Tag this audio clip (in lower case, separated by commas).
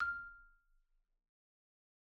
percussion, marimba, mallet percussion, music, musical instrument